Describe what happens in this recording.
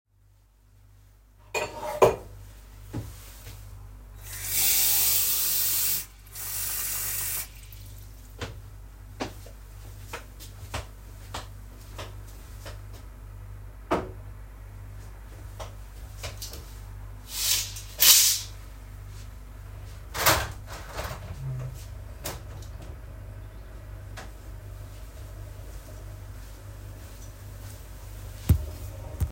I take a glass and fill it with water, then I go to the table and put the glass on it, then I go to the window and open it, then I return to the kitchen